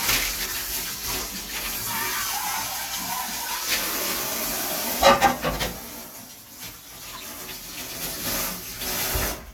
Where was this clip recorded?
in a kitchen